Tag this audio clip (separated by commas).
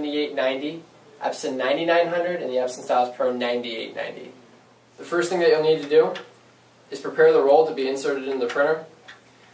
Speech